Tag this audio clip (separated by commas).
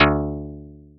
Musical instrument, Music, Guitar, Plucked string instrument